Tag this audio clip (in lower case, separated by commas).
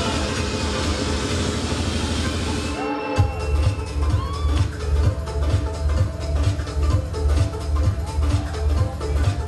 speech, music, house music